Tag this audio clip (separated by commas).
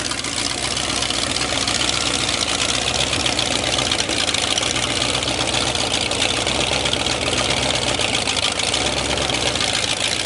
car engine starting